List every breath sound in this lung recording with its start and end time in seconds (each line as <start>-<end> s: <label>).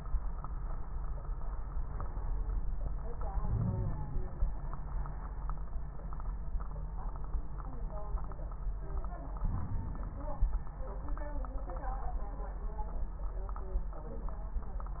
3.37-4.52 s: inhalation
3.37-4.52 s: crackles
9.42-10.50 s: inhalation
9.42-10.50 s: crackles